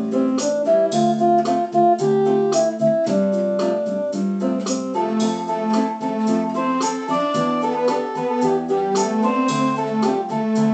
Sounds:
Music

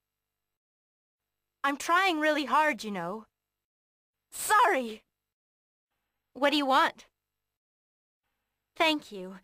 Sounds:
Speech

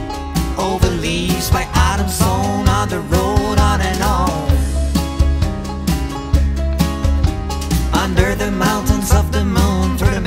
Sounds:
Music, Background music, Dance music

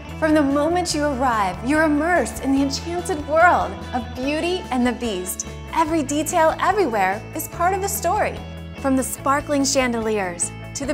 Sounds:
Speech, Music

